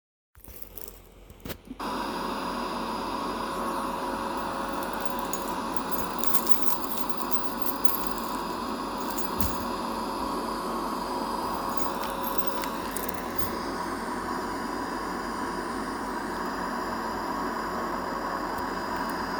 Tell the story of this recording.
i was cleaning my room